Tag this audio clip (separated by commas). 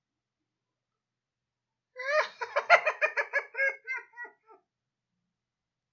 Human voice, Laughter